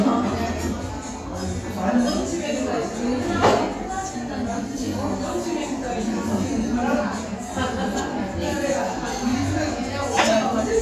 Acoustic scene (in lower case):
restaurant